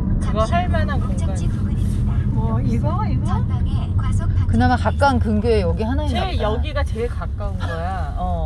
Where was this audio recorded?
in a car